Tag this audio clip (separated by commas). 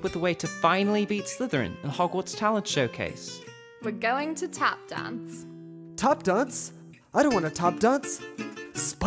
Speech, Music